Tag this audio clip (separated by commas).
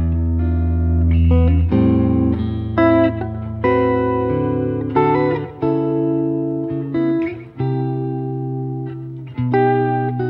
inside a small room, Music